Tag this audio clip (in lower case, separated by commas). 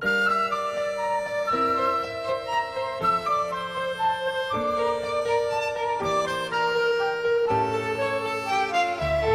music, musical instrument